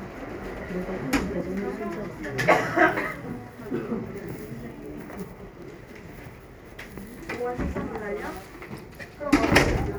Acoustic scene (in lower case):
crowded indoor space